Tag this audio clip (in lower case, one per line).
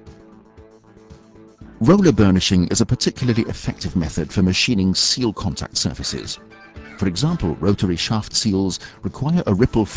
speech
music